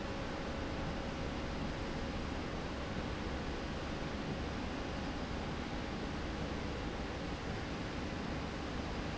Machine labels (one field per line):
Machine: slide rail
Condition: normal